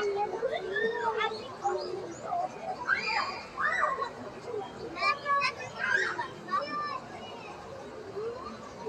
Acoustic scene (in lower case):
park